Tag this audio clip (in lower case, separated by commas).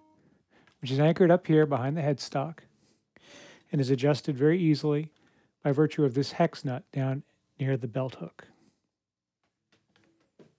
speech